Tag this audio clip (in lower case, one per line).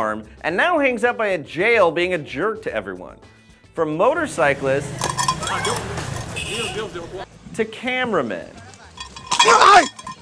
music
speech